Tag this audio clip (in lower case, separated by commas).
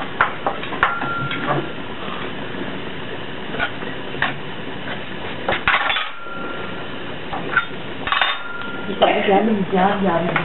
speech